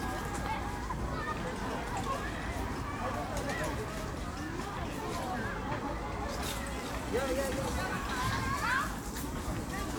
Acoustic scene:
park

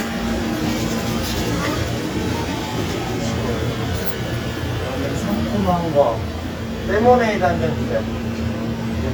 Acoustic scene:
cafe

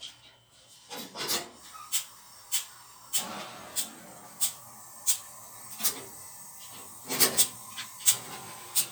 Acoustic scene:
kitchen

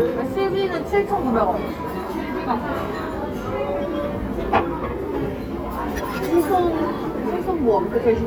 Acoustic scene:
crowded indoor space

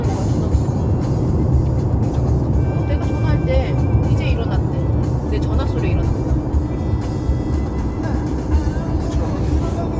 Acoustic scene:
car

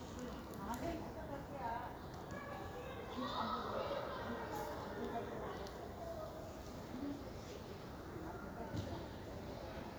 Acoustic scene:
park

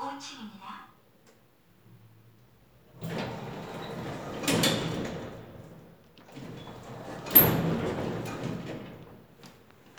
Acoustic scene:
elevator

